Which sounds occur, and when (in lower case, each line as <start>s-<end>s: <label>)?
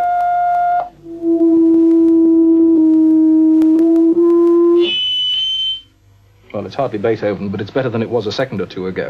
0.0s-5.9s: electronic tuner
0.0s-9.0s: background noise
0.1s-0.8s: noise
1.3s-2.1s: noise
2.8s-3.1s: noise
3.6s-4.5s: noise
6.4s-9.0s: man speaking